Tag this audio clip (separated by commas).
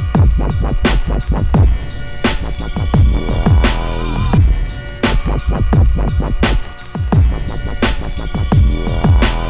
Dubstep, Electronic music, Music